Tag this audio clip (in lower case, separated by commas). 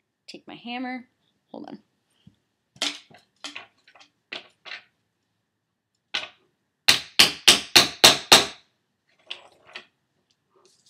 speech